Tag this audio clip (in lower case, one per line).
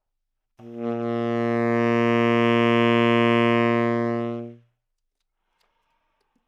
musical instrument
music
woodwind instrument